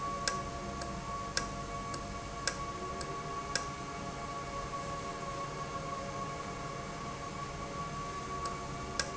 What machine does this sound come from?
valve